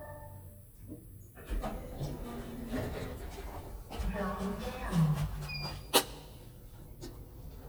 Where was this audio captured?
in an elevator